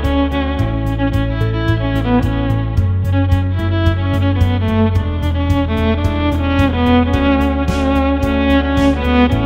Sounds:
musical instrument, music, fiddle

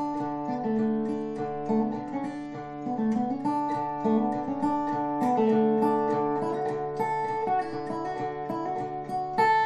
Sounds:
musical instrument, plucked string instrument, guitar, music, strum

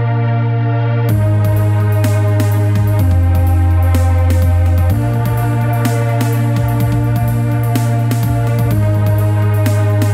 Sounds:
music, dubstep

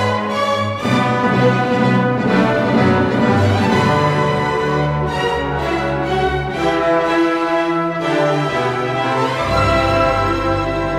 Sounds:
music

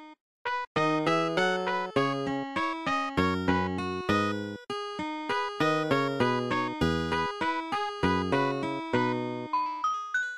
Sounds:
music

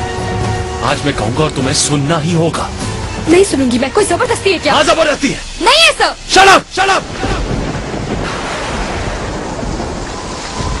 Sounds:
music, speech

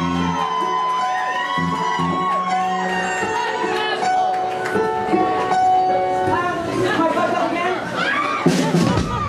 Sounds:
speech, music

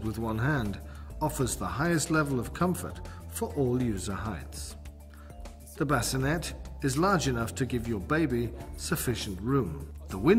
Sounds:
music, speech

